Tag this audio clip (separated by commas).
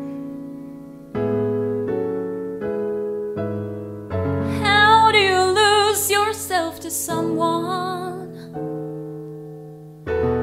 Music, Singing